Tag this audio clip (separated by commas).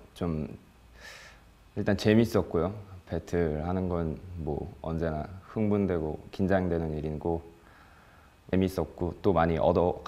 Speech